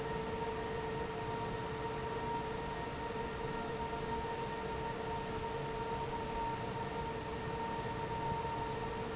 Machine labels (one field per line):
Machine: fan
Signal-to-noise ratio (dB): -6 dB